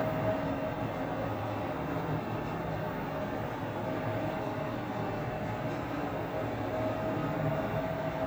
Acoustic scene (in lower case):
elevator